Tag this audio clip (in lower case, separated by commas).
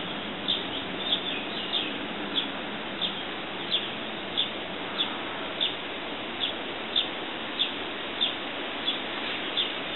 bird, animal